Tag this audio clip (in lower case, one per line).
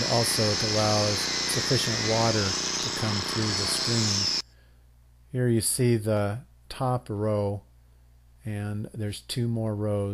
speech